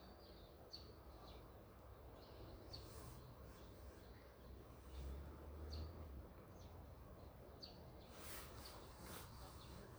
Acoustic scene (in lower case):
park